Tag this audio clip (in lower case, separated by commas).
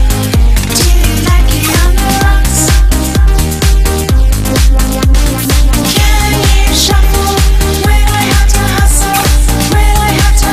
music, house music